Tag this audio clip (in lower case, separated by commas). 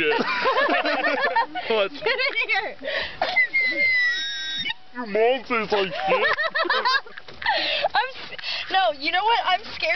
speech